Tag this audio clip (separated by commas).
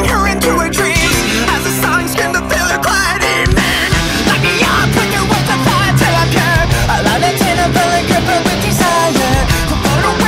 Music